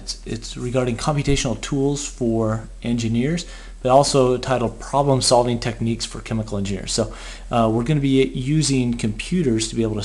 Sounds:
speech

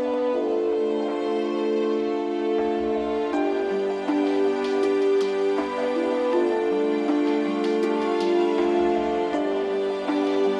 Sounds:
music, background music

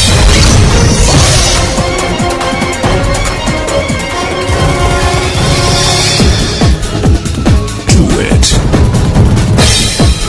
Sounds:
music, speech

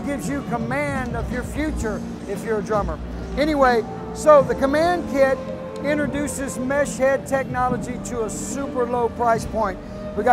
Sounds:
drum kit, speech, music, musical instrument

